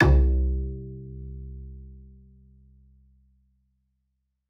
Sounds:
Musical instrument, Bowed string instrument, Music

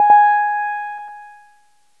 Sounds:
Keyboard (musical), Musical instrument, Piano, Music

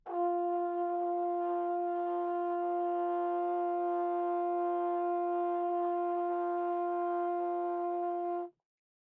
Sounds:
Brass instrument, Musical instrument, Music

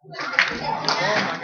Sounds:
Hands, Crowd, Human group actions, Clapping

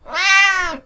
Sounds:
Animal, Meow, Domestic animals, Cat

